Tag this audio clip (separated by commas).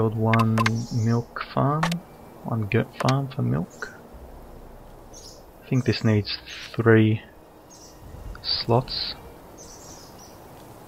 Environmental noise